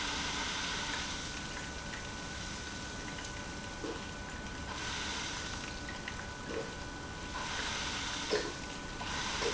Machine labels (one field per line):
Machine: pump